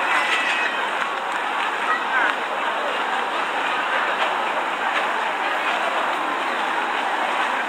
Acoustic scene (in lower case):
park